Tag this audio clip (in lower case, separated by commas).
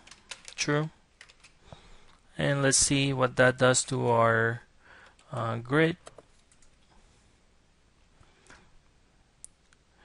speech